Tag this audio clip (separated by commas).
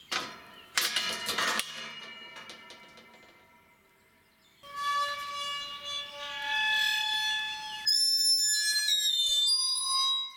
Screech